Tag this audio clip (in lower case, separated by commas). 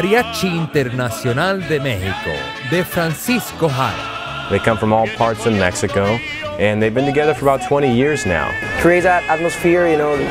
speech, music